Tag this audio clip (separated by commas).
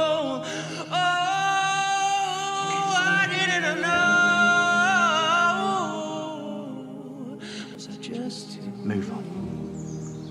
Speech, Music